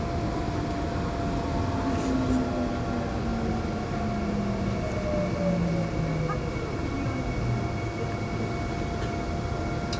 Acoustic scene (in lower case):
subway train